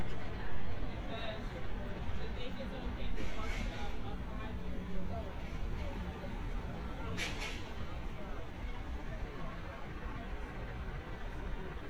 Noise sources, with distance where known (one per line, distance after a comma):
person or small group talking, near